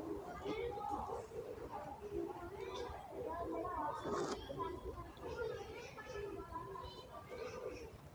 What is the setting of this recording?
residential area